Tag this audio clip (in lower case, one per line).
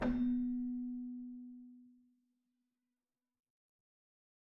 keyboard (musical)
music
musical instrument